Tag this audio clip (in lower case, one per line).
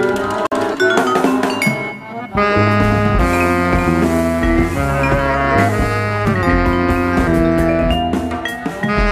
music
saxophone
jazz
drum
accordion
musical instrument
brass instrument